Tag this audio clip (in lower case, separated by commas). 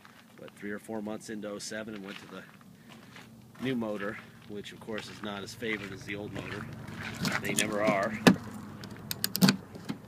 speech